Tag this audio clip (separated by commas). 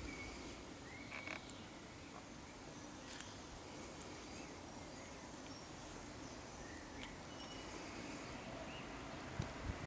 Animal